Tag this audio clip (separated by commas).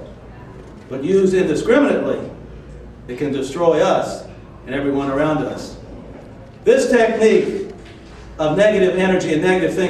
Speech, Male speech